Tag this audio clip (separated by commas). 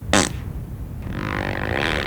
Fart